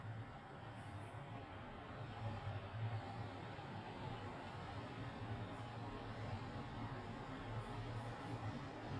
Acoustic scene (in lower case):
residential area